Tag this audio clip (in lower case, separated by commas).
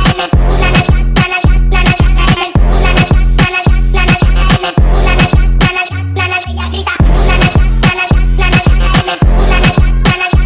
electronica, music